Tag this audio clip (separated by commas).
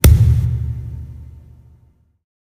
Thump